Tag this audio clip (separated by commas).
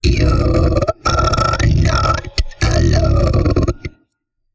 Speech, Human voice